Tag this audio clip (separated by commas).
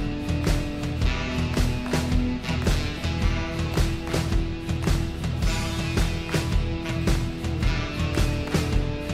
Music